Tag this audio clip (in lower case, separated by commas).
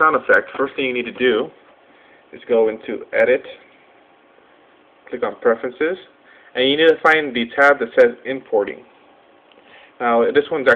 speech